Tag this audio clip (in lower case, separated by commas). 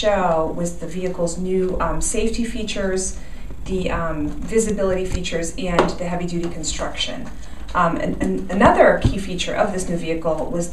speech